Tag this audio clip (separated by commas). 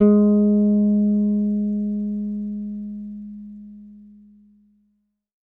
Musical instrument, Guitar, Music, Bass guitar, Plucked string instrument